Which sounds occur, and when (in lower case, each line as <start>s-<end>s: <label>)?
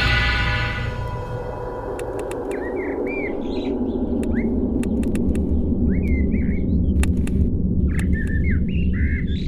0.0s-9.4s: music
1.0s-1.1s: tick
1.9s-2.5s: typing
2.5s-4.5s: bird vocalization
4.0s-4.2s: typing
4.8s-5.3s: typing
4.8s-6.9s: bird vocalization
6.0s-6.1s: tick
6.9s-7.3s: typing
7.8s-9.4s: bird vocalization
7.9s-8.4s: typing